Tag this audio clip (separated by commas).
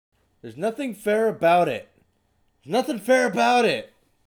Male speech, Speech, Human voice